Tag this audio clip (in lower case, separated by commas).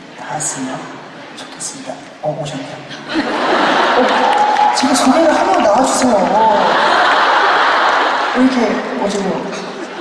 speech